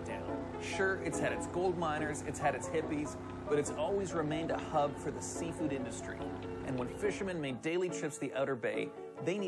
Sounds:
Speech, Music

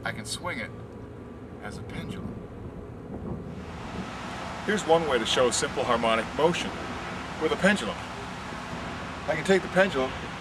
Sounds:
Speech

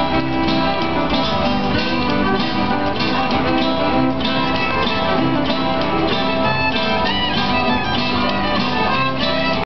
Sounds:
fiddle, Strum, Music, Guitar, Plucked string instrument, Musical instrument

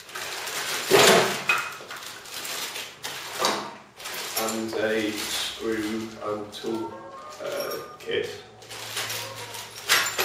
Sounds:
inside a large room or hall, Music, Speech

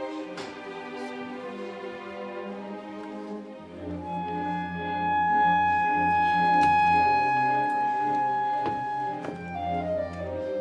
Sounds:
Musical instrument, Music

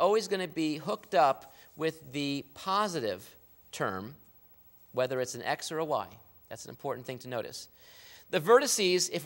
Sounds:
Speech

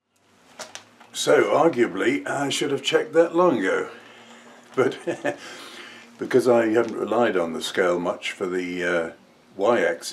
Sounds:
Speech

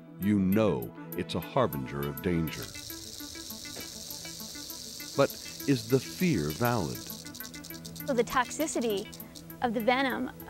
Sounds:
Music, outside, rural or natural, Speech, Animal, Snake

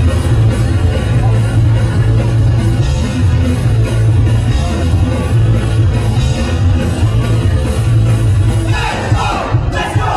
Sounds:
Rhythm and blues, Blues, Music

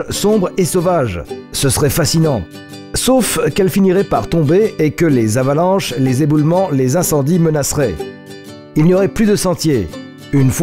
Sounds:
Speech, Music

